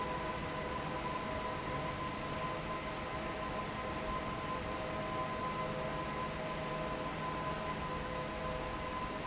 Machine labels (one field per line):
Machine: fan